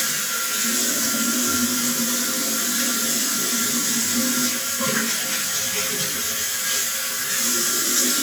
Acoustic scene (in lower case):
restroom